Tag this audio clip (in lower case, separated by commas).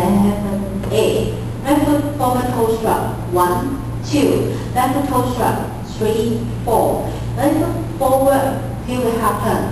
speech